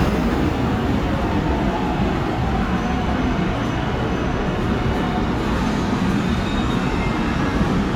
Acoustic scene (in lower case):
subway station